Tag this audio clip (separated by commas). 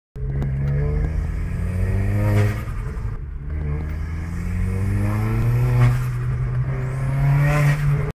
Clatter